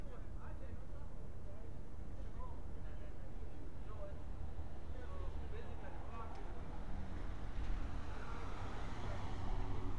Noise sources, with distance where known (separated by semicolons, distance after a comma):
medium-sounding engine, far; person or small group talking, far